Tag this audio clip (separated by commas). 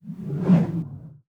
Whoosh